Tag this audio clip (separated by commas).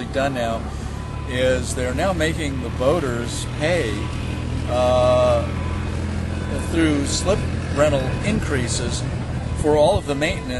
Vehicle, speedboat, Speech